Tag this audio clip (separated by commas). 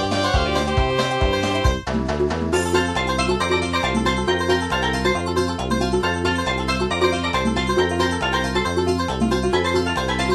Music, Video game music